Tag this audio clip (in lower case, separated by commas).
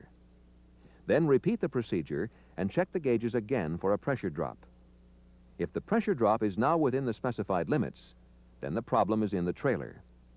speech